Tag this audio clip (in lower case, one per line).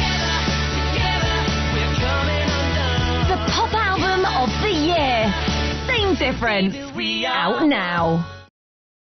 speech
music